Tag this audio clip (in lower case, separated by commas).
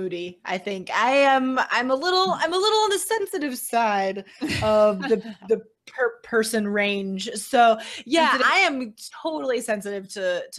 speech